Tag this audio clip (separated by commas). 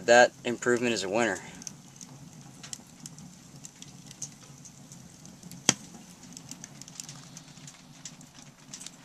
Hammer